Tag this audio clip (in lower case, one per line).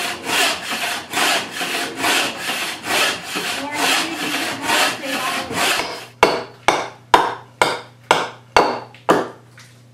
speech
wood
tools